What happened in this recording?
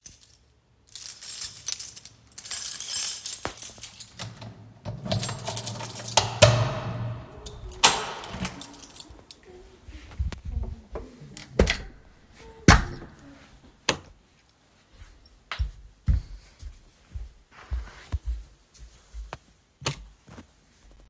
I looked for the keys and then opened the door. I closed the door behind me and turned on the lights. I then walked inside. In the background you can hear a mother singing lullabies to a baby.